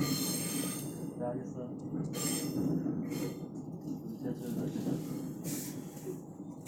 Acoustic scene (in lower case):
subway train